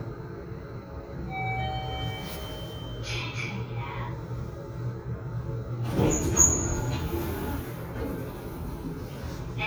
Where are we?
in an elevator